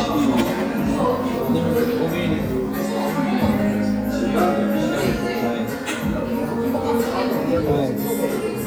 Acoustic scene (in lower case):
crowded indoor space